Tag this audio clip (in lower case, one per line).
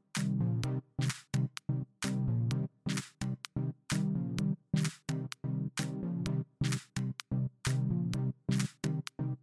music